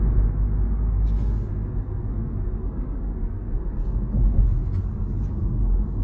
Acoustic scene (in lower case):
car